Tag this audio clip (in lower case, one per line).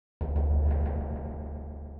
musical instrument
percussion
drum
music